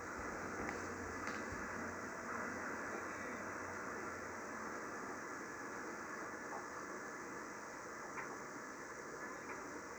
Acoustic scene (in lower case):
subway train